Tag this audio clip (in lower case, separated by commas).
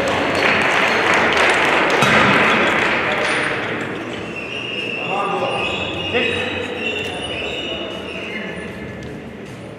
speech